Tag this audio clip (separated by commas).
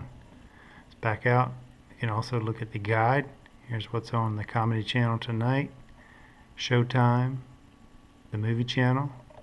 inside a small room, Speech